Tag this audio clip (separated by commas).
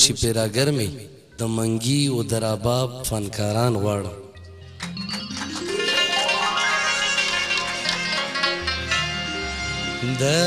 Music, Speech